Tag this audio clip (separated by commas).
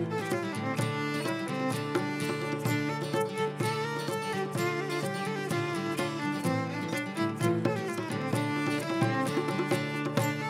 Music